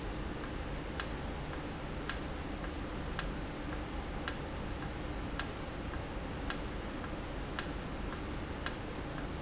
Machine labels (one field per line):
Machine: valve